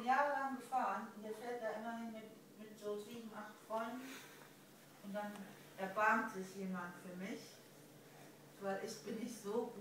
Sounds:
Speech

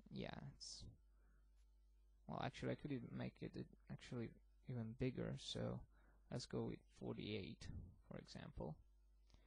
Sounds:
Speech

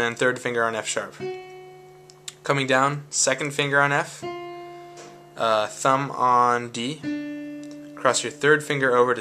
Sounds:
Speech, Harmonic

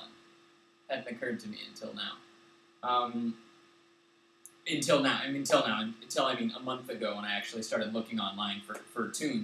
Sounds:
Speech

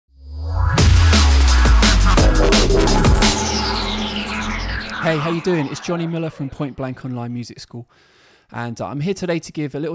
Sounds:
Music, Drum and bass, Speech

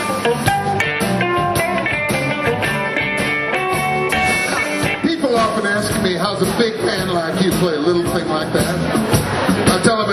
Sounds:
Blues, Plucked string instrument, Music, Speech, Musical instrument, Guitar

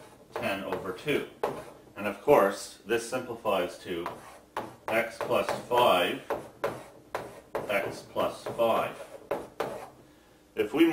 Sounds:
Speech, inside a small room

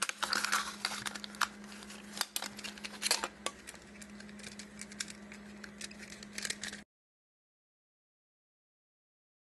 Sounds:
inside a small room

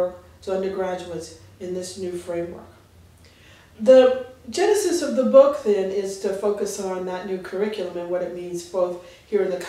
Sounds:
Speech

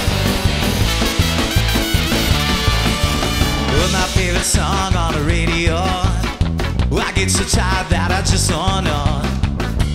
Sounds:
Exciting music, Music

